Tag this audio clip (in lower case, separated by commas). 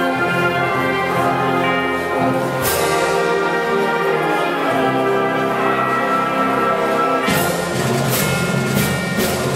music, orchestra